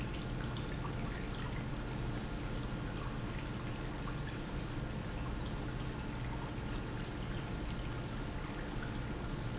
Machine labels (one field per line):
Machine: pump